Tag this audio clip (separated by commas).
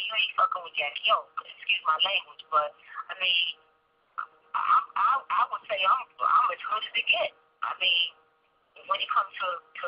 Speech